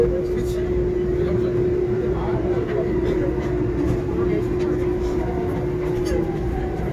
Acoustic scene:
subway train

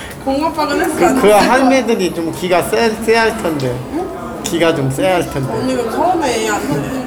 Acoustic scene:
cafe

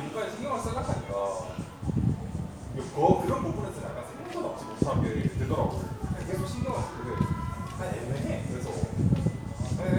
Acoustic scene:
crowded indoor space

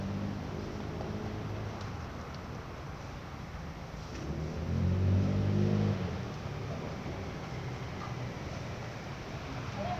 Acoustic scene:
residential area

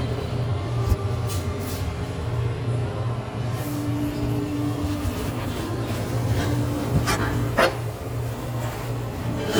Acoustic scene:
restaurant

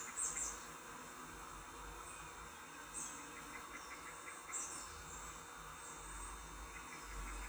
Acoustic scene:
park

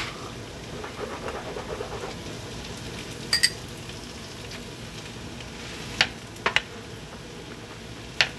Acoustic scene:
kitchen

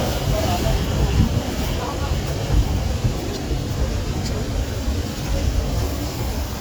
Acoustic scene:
residential area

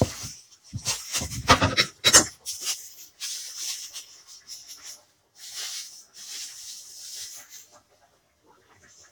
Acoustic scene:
kitchen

